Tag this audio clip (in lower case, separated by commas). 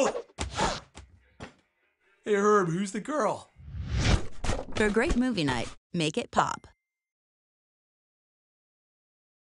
speech